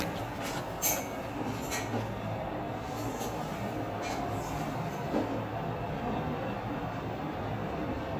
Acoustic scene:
elevator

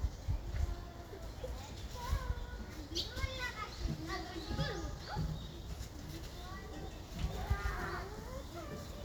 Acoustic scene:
park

